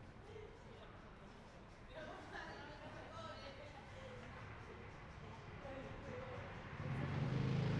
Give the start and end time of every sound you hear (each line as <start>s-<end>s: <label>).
0.0s-7.2s: people talking
6.6s-7.8s: motorcycle
6.6s-7.8s: motorcycle engine accelerating